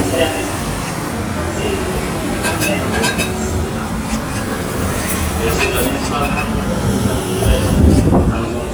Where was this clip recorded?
on a street